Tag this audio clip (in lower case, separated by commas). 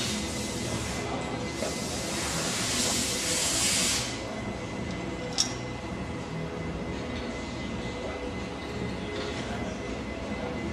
music, speech